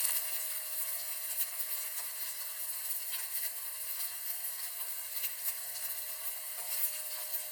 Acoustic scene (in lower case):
kitchen